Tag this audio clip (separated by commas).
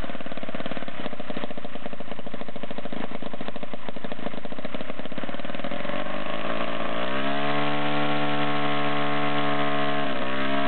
Engine, Medium engine (mid frequency), vroom